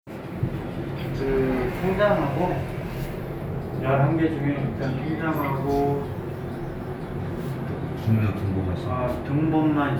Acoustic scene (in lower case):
elevator